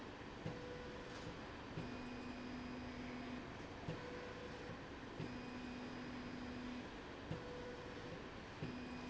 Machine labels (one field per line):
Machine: slide rail